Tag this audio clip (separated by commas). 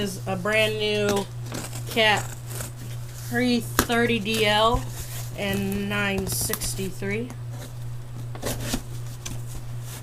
Speech